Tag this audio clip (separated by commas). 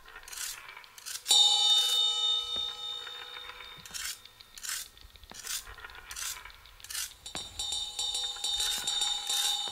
Music